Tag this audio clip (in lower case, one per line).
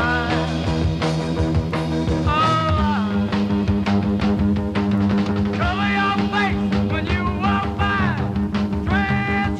music